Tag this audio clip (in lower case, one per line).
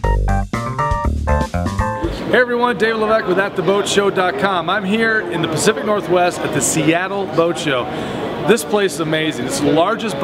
speech